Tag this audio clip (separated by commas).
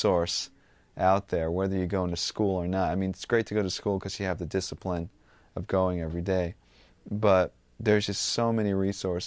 Speech